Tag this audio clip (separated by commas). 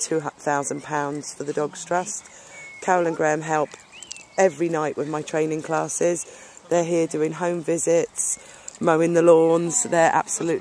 Speech, Animal